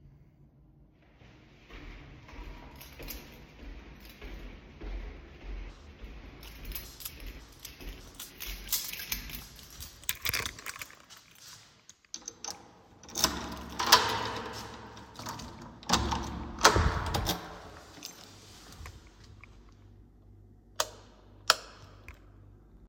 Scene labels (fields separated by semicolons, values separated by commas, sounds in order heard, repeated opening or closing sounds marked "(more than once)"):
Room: hallway; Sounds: footsteps, keys, door, light switch